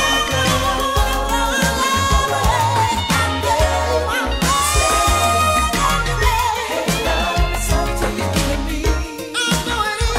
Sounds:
Music

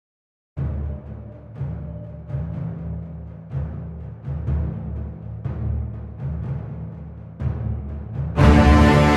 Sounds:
Electronic music, Timpani, Music

